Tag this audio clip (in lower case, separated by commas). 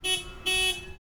car, vehicle, motor vehicle (road)